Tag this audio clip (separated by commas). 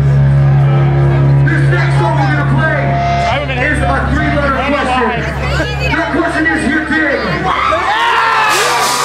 Speech, Music